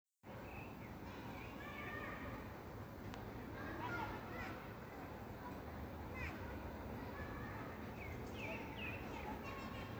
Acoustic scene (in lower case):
park